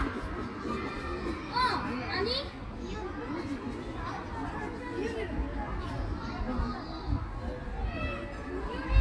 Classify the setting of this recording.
park